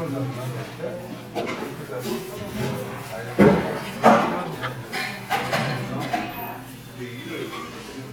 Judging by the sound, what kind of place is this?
crowded indoor space